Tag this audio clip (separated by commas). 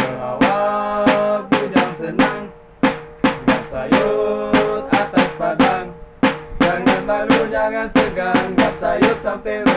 Music